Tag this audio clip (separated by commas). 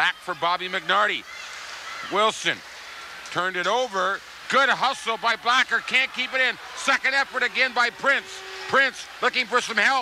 Speech